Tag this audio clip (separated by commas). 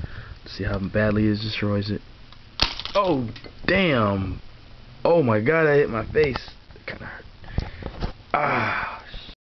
Speech